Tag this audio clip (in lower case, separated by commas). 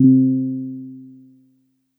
musical instrument, piano, keyboard (musical), music